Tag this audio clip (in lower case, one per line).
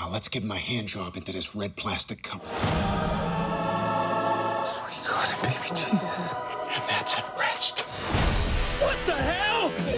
music
speech